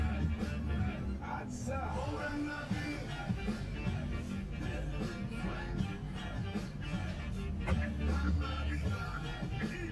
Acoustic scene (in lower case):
car